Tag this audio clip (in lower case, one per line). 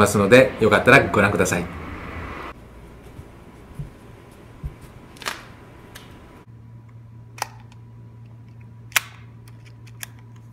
speech